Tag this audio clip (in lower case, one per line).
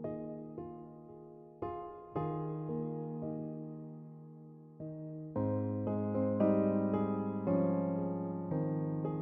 music